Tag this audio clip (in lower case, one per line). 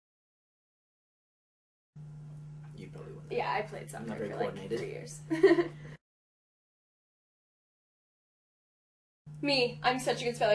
speech